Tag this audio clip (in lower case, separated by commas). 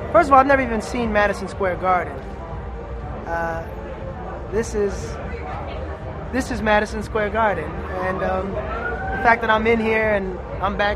speech, music